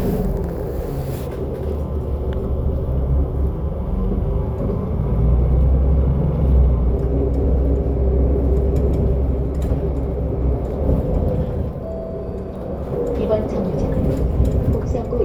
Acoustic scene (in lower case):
bus